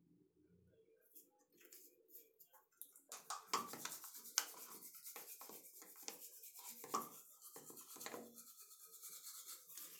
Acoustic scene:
restroom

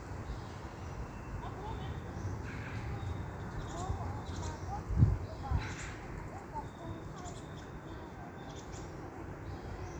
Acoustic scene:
park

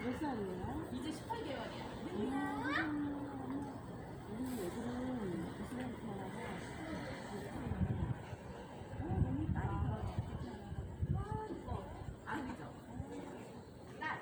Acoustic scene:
residential area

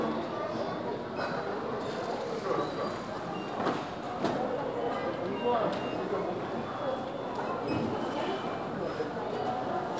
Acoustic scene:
crowded indoor space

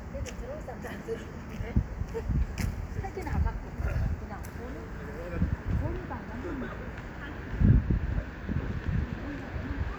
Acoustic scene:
street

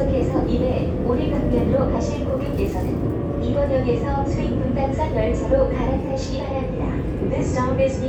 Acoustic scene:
subway train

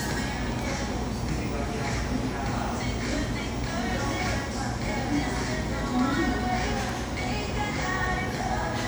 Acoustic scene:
cafe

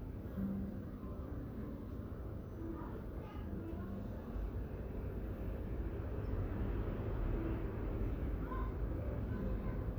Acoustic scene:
residential area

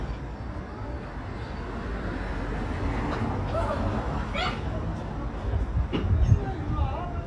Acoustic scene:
residential area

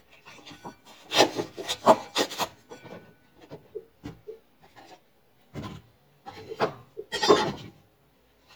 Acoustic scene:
kitchen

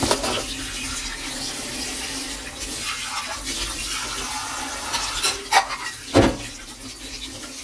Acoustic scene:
kitchen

